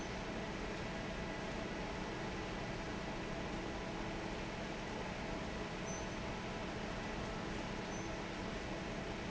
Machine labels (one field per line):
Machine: fan